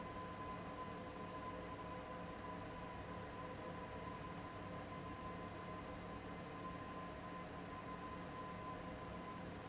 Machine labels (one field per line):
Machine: fan